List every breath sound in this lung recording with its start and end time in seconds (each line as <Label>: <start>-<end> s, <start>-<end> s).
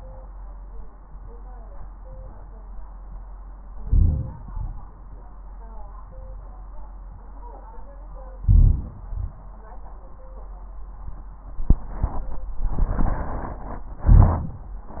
Inhalation: 3.81-4.36 s, 8.47-9.01 s, 14.10-14.60 s
Exhalation: 4.43-4.97 s, 9.07-9.46 s
Crackles: 3.81-4.36 s, 8.47-9.01 s, 14.10-14.60 s